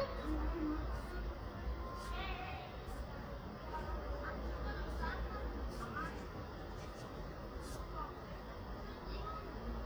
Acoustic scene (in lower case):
residential area